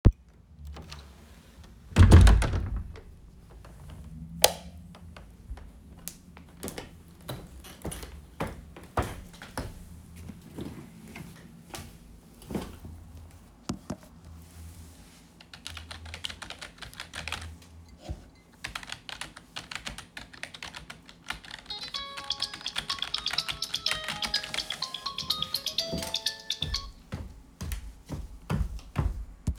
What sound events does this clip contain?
door, light switch, footsteps, keyboard typing, phone ringing